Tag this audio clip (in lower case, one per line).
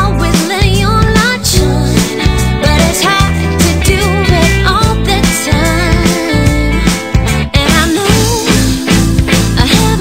music